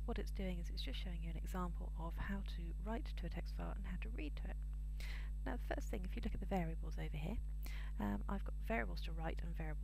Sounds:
speech

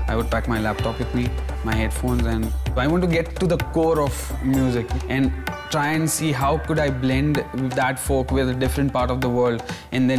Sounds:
music, speech

